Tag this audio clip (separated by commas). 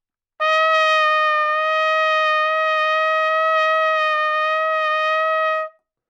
Brass instrument, Trumpet, Musical instrument, Music